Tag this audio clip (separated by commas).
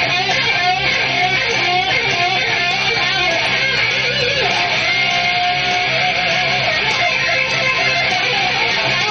Music